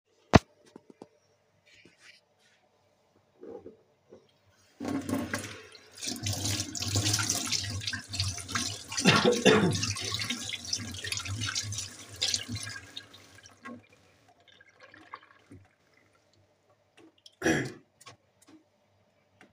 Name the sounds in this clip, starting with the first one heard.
running water